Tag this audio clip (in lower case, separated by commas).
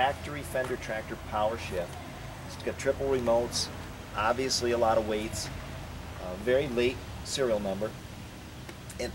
speech